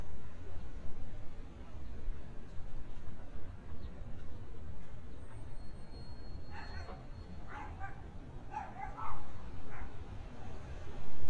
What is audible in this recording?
dog barking or whining